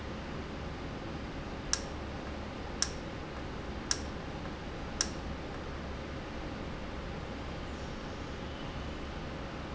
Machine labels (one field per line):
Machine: valve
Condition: normal